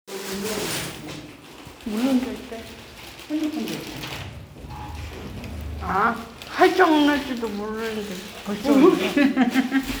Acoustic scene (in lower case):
elevator